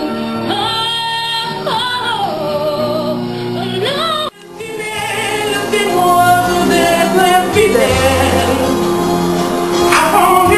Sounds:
music

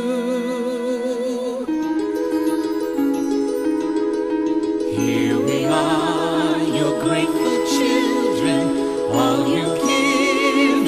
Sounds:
music

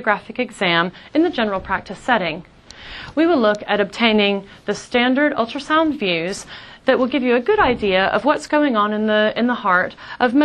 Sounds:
speech

